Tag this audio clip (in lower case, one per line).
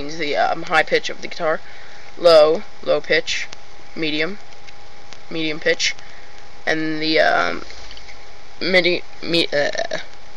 speech